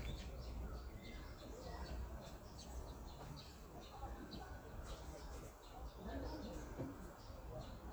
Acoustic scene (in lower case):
park